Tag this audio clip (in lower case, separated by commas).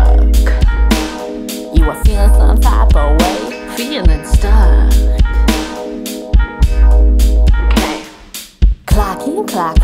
music